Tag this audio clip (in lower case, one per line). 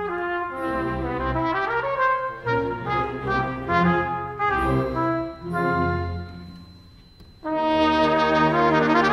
playing trumpet
brass instrument
trumpet